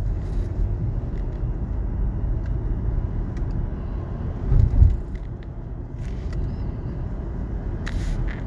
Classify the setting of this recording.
car